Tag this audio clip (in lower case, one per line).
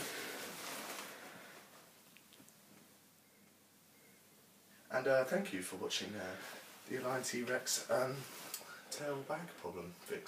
speech